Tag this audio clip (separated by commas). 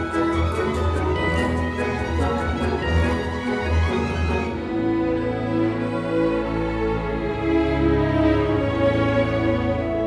Tender music, Background music, Music